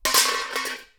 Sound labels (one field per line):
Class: object falling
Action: being thrown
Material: metal